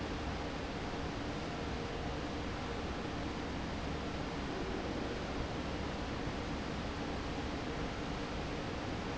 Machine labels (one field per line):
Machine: fan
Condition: normal